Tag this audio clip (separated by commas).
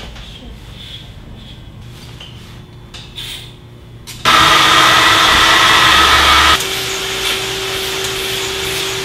inside a small room